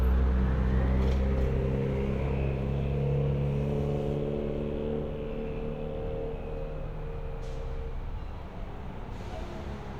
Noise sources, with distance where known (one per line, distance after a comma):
medium-sounding engine, near